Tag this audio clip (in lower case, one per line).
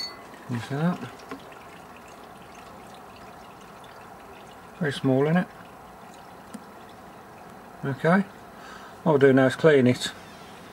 water